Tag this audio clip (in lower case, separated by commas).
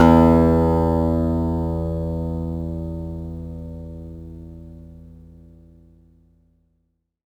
musical instrument, acoustic guitar, plucked string instrument, music, guitar